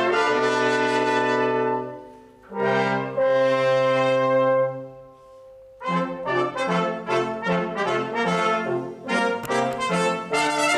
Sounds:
Trumpet, Brass instrument, Trombone

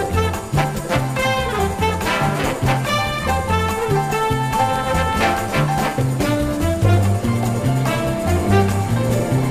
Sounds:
Music

